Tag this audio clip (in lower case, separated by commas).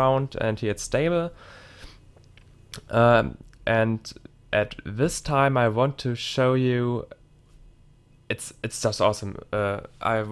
speech